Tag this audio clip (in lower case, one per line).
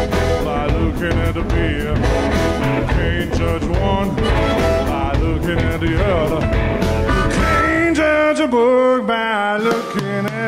ska
guitar
singing
song
music